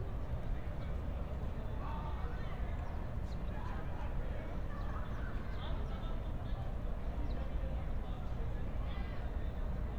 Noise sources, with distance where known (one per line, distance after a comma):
person or small group talking, far